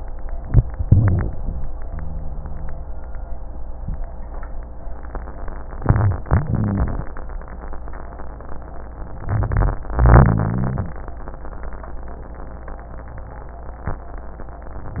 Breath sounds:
0.32-0.69 s: inhalation
0.32-0.69 s: crackles
0.82-1.67 s: exhalation
0.83-1.31 s: rhonchi
5.79-6.22 s: rhonchi
5.79-6.24 s: inhalation
6.30-7.08 s: exhalation
6.47-6.95 s: rhonchi
9.05-9.83 s: inhalation
9.20-9.79 s: rhonchi
9.89-10.97 s: exhalation
9.96-10.97 s: rhonchi

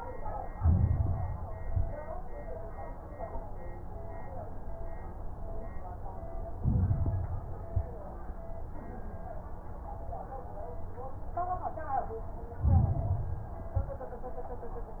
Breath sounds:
0.49-1.59 s: inhalation
0.49-1.59 s: crackles
1.59-2.12 s: exhalation
1.59-2.12 s: crackles
6.54-7.64 s: inhalation
6.54-7.64 s: crackles
7.70-8.23 s: exhalation
7.70-8.23 s: crackles
12.60-13.70 s: inhalation
12.60-13.70 s: crackles
13.74-14.27 s: exhalation
13.74-14.27 s: crackles

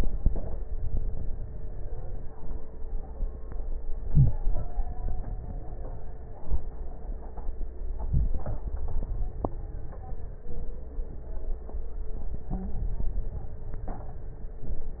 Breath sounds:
4.00-4.45 s: inhalation
12.47-12.78 s: stridor

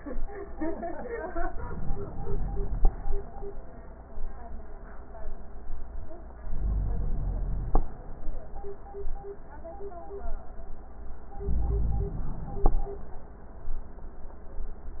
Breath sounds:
1.50-2.90 s: inhalation
6.48-7.81 s: inhalation
11.38-12.71 s: inhalation

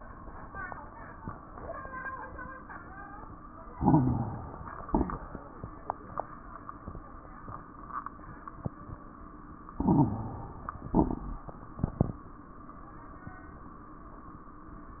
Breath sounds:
3.72-4.82 s: inhalation
3.72-4.82 s: crackles
4.90-5.41 s: exhalation
4.90-5.41 s: crackles
9.75-10.87 s: inhalation
9.75-10.87 s: crackles
10.91-11.42 s: exhalation
10.91-11.42 s: crackles

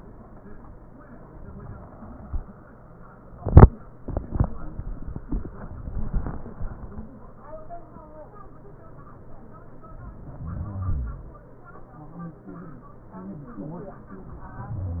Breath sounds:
10.23-11.42 s: exhalation

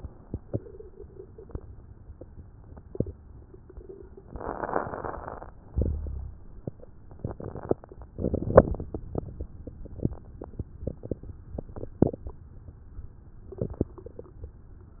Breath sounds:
4.28-5.53 s: inhalation
4.28-5.53 s: crackles
5.65-6.57 s: exhalation
5.65-6.57 s: crackles

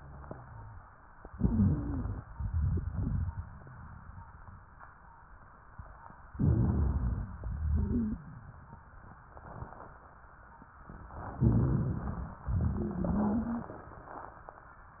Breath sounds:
1.35-2.24 s: inhalation
1.40-2.20 s: wheeze
2.23-4.56 s: exhalation
2.51-3.32 s: wheeze
6.33-7.24 s: inhalation
6.35-7.33 s: wheeze
7.23-9.28 s: exhalation
7.57-8.17 s: wheeze
11.37-12.32 s: inhalation
11.38-11.94 s: wheeze
12.31-15.00 s: exhalation
12.46-13.64 s: wheeze

